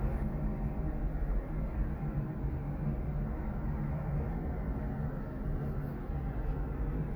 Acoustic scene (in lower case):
elevator